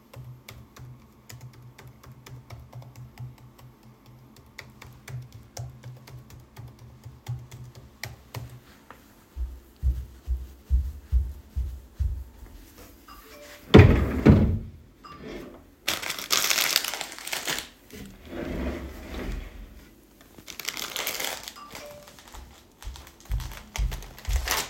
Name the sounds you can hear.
keyboard typing, footsteps, phone ringing, wardrobe or drawer